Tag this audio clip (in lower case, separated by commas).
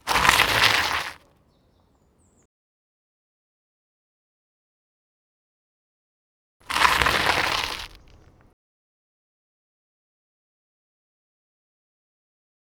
vehicle, bicycle